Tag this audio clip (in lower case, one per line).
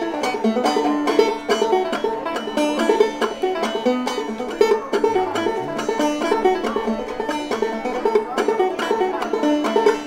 speech
music
playing banjo
musical instrument
plucked string instrument
guitar
banjo